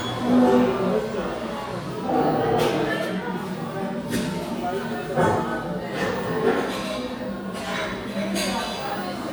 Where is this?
in a crowded indoor space